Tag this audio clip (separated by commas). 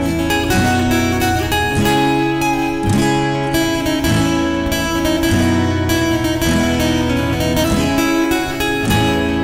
Guitar, Music, Musical instrument, Plucked string instrument, Acoustic guitar, Strum